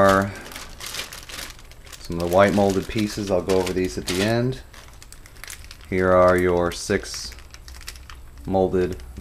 A man speaks, some plastic crinkles